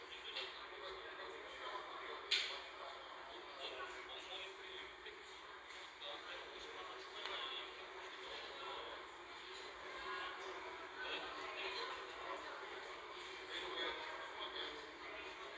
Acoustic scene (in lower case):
crowded indoor space